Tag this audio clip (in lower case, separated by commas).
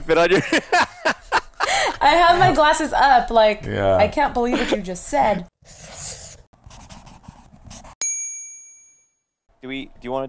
speech